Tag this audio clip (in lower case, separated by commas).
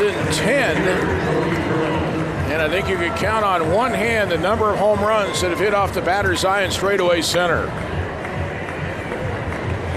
music, speech